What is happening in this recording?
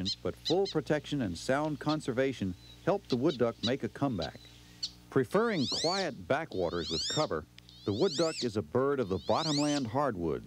A man speaks as a duck makes squeaking noises